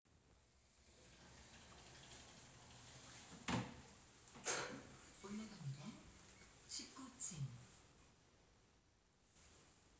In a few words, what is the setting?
elevator